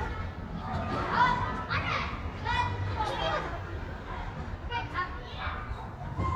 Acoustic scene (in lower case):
residential area